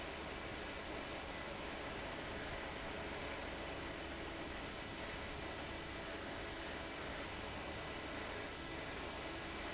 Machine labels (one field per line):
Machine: fan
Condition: abnormal